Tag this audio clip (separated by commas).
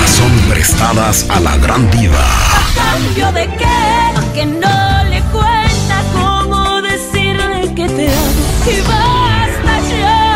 Music, Speech